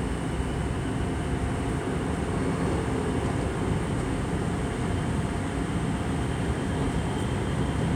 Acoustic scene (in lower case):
subway train